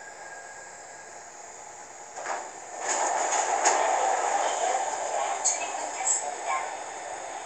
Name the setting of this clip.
subway train